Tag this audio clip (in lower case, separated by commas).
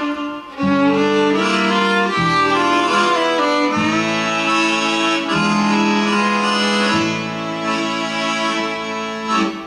music, violin, musical instrument